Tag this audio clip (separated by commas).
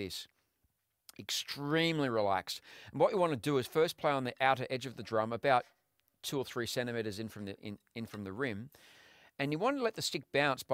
Speech